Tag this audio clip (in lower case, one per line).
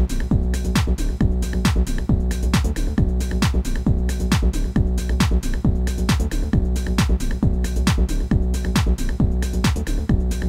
exciting music
rock and roll
music